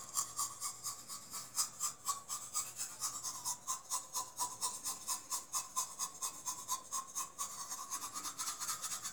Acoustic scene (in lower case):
restroom